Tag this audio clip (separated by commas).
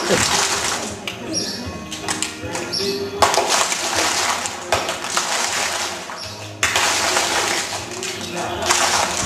Speech, Music